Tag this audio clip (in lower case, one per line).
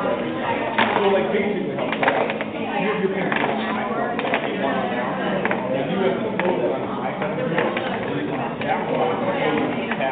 speech